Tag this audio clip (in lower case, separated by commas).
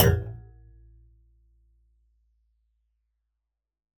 thump